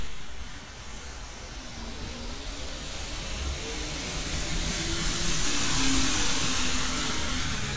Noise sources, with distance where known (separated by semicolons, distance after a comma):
engine of unclear size